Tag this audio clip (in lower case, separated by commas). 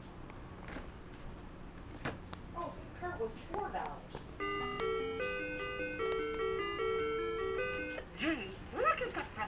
music, speech